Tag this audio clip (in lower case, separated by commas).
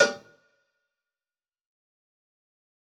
cowbell, bell